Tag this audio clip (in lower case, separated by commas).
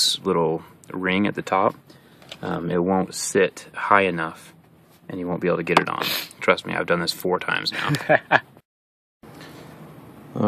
speech, outside, urban or man-made